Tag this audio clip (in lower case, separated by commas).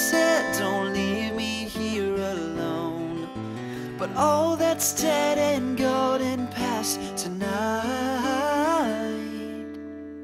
music